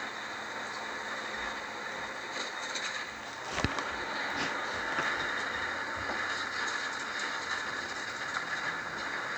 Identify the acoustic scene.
bus